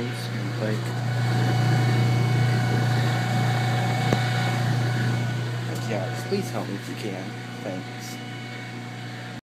Machine buzzes in the background while a man speaks